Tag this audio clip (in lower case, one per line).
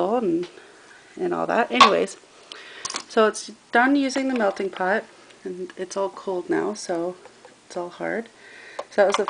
speech